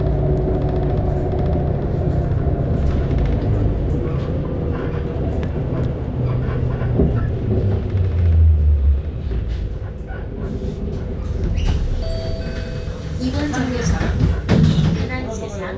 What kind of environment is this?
bus